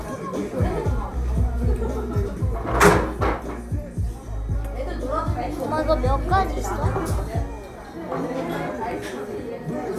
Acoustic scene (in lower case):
cafe